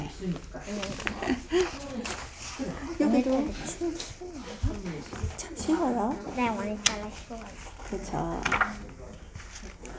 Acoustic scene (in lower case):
crowded indoor space